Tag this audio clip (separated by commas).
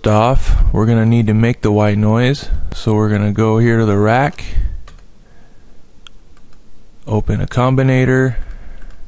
Speech